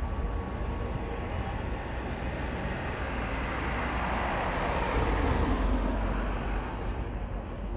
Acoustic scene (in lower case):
street